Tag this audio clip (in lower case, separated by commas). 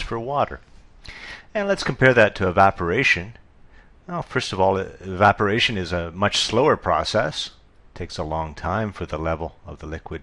speech